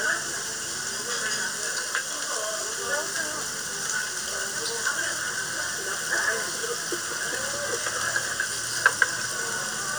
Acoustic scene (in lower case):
restaurant